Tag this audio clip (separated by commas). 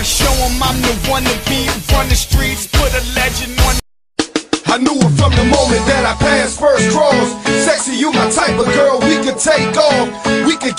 Music